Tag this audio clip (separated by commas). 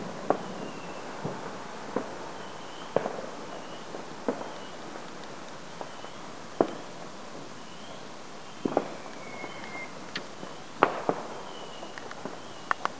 Explosion, Fireworks